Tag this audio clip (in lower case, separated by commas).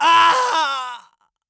human voice, screaming